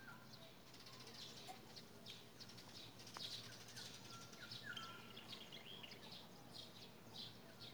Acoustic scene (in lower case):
park